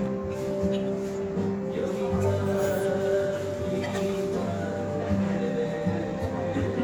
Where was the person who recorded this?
in a restaurant